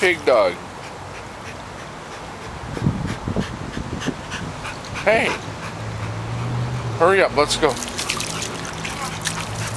A man is talking while a dog pants